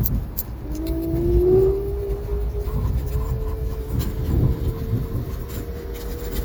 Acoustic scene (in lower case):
street